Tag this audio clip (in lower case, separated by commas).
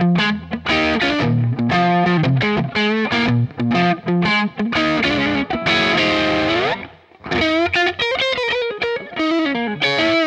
music